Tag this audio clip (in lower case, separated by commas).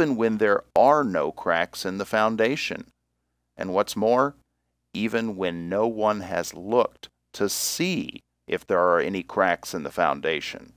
speech